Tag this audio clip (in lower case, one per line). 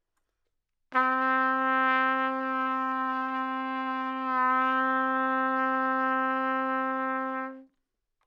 musical instrument
music
trumpet
brass instrument